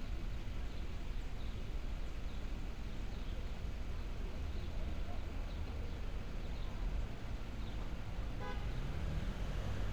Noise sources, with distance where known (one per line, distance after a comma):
car horn